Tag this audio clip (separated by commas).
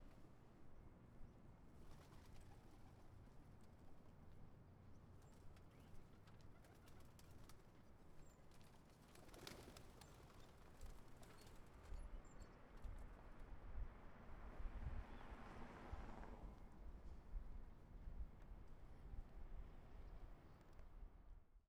Wild animals, Bird, Animal